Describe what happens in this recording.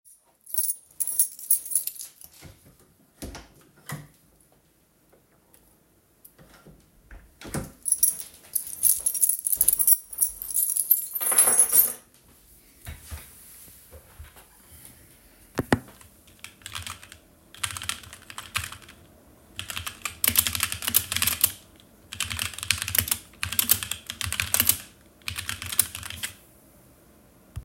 I opened the door to my bedroom, then closed it once inside while flipping my keys in my hand. I then sat down in my chair and started typing on my keyboard.